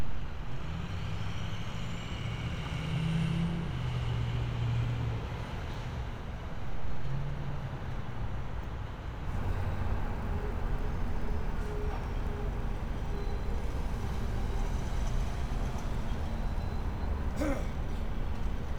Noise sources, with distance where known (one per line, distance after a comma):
engine of unclear size